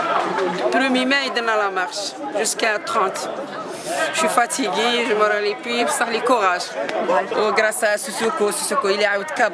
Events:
0.0s-9.5s: speech babble
0.1s-0.6s: generic impact sounds
0.7s-2.1s: female speech
2.2s-3.3s: female speech
3.1s-3.2s: tick
3.7s-4.1s: human sounds
4.1s-6.8s: female speech
6.8s-7.0s: tick
7.0s-9.5s: female speech

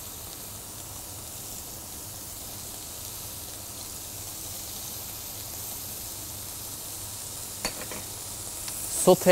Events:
0.0s-9.3s: frying (food)
0.0s-9.3s: mechanisms
7.5s-8.1s: generic impact sounds
9.0s-9.3s: man speaking

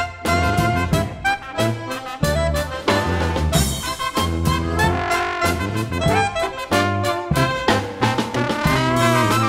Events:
0.0s-9.4s: music

